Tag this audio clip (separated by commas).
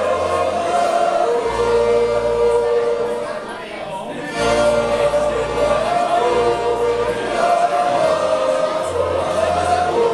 Speech, Music